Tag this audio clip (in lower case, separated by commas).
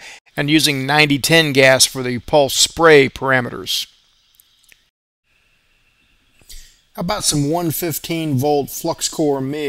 arc welding